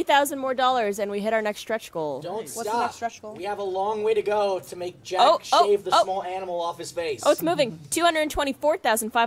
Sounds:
Speech

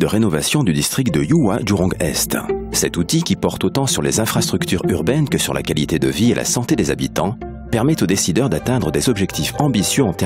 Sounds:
Speech, Music

